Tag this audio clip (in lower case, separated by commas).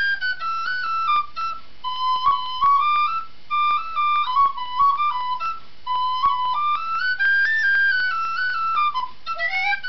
flute, music